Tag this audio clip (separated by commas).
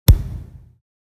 Thump